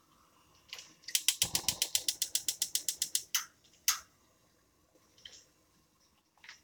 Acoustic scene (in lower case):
kitchen